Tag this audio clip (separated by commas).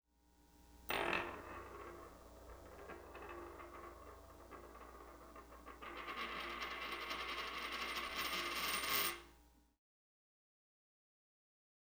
Coin (dropping), home sounds